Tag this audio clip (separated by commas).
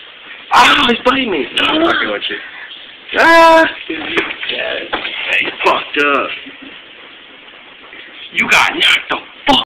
Speech